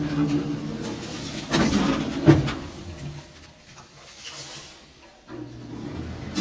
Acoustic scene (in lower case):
elevator